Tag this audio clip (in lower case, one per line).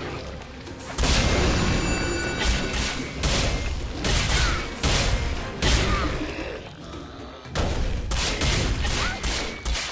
music